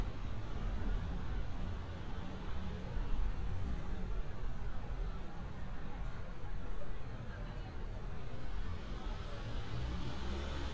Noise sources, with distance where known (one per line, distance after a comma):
medium-sounding engine, far
unidentified human voice